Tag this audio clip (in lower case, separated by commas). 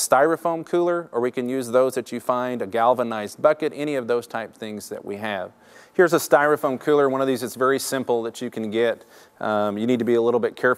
speech